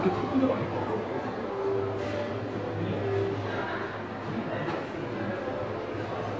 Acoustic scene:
subway station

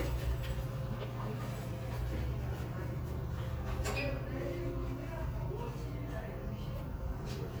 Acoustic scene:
crowded indoor space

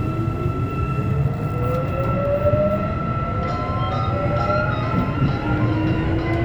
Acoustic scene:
subway train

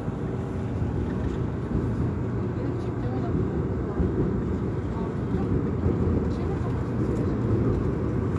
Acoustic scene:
subway train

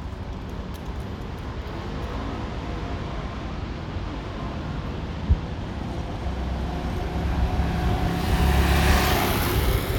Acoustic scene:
residential area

